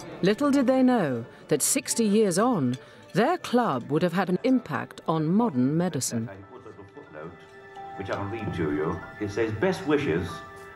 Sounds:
speech, music

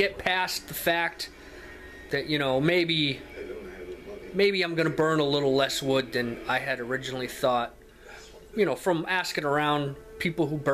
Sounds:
speech

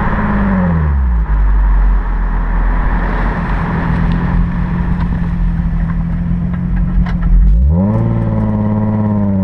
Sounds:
car passing by

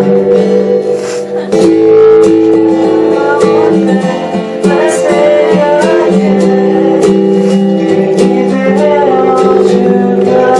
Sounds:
music, male singing

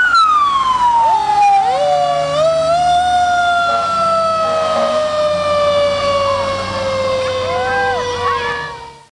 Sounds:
vehicle, emergency vehicle, fire engine

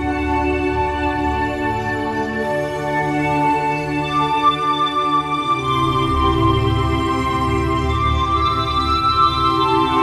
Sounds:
music

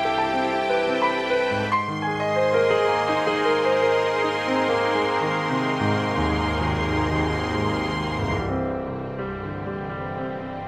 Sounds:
music

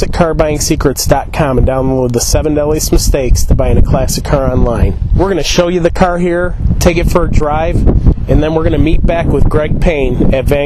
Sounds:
speech

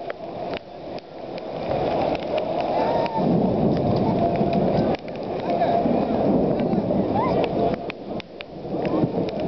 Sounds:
rain on surface, speech

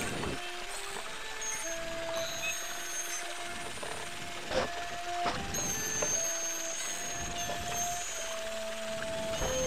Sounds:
vehicle, music

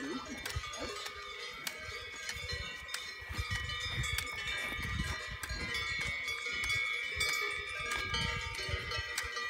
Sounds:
bovinae cowbell

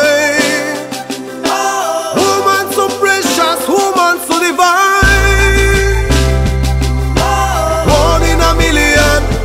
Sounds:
exciting music, music

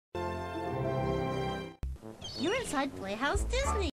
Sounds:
speech, television, music

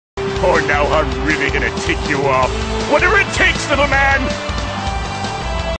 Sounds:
music, speech

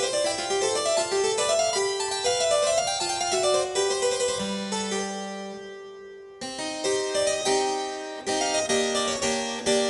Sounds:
music

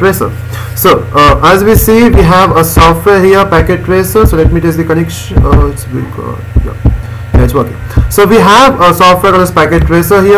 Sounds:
speech

